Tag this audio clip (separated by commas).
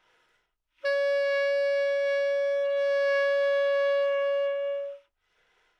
Musical instrument, woodwind instrument, Music